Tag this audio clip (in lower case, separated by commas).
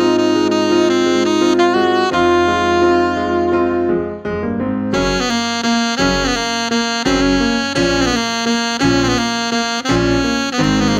keyboard (musical), piano, electric piano